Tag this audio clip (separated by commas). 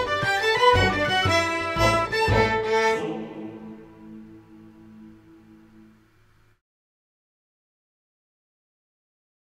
Music